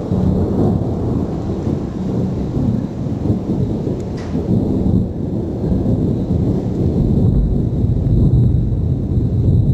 Thunder rumbles